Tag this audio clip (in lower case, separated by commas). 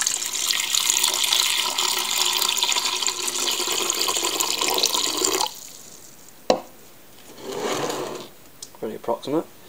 speech